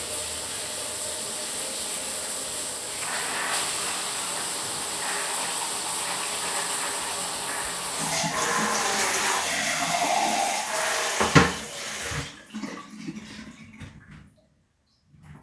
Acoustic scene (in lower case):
restroom